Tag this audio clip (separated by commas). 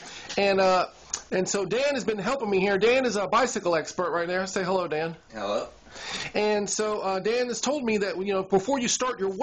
Speech